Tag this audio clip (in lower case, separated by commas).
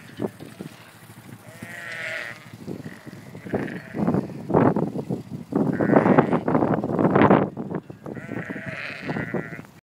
pets, sheep, sheep bleating, animal, bleat